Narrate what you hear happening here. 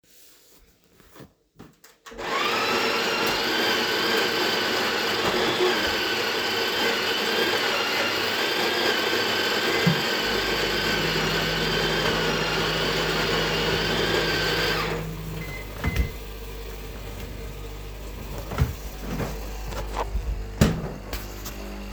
I am making coffee and also something to eat in the microwave which I was taking out of the drawer.